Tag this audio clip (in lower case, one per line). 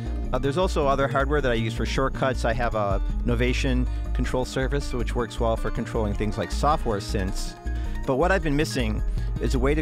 music
speech